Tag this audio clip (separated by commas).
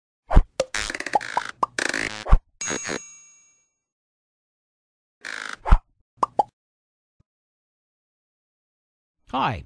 Plop, Speech